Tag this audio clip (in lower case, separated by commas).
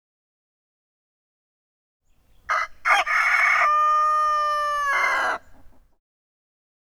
livestock, animal, chicken, fowl